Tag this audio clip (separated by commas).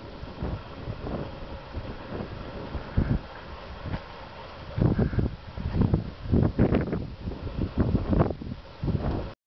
Bird